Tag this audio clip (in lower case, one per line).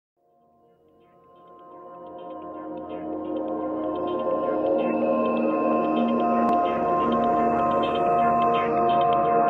electronic music
music
ambient music